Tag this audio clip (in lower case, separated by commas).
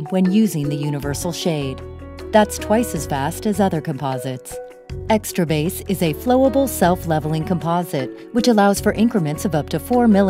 speech, music